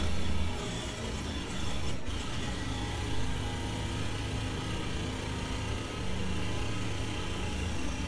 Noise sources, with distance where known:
jackhammer, near

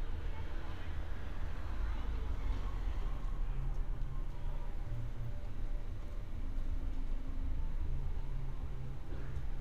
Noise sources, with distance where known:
medium-sounding engine; unidentified human voice, far

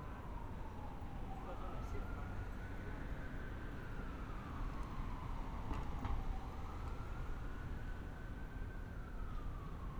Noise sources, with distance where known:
siren, far; person or small group talking

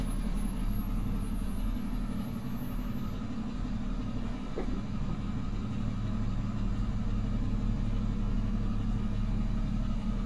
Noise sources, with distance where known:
medium-sounding engine

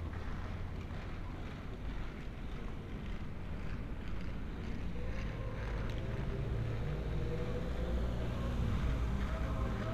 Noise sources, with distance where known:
engine of unclear size, near

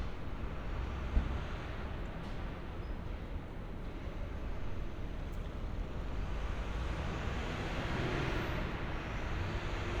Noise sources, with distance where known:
large-sounding engine

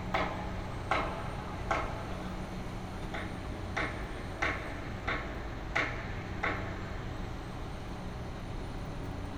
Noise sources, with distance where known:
unidentified impact machinery, near

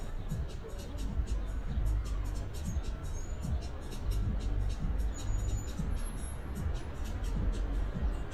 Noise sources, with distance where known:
music from a fixed source, near

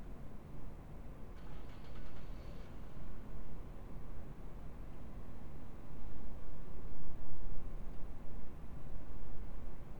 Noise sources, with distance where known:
engine of unclear size, far

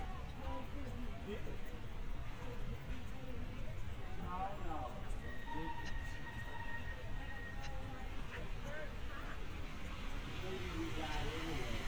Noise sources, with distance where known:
person or small group talking, near

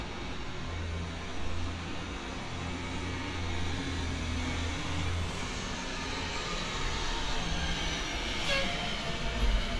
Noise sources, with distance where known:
large-sounding engine, near

